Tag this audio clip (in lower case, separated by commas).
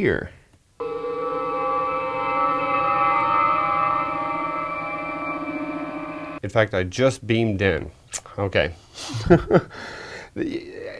speech